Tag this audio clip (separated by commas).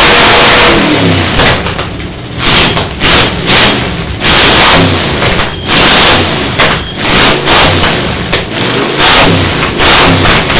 Vehicle, Car